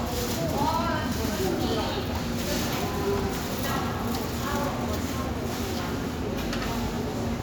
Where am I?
in a subway station